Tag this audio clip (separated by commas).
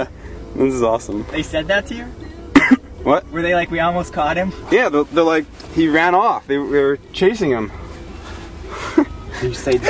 Speech